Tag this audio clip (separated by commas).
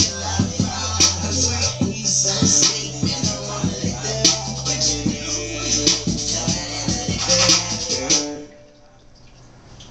Music